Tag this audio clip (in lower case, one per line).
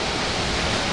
vehicle
boat
ocean
water